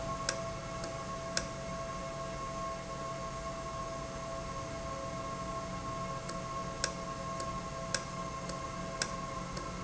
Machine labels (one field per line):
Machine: valve